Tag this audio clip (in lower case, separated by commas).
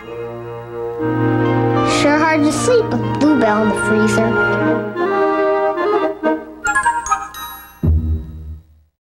speech, music